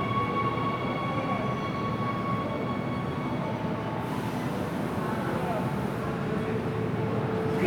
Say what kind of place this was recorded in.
subway station